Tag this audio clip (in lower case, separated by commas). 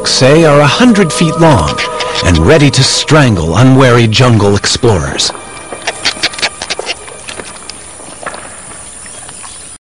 speech, animal, music, outside, rural or natural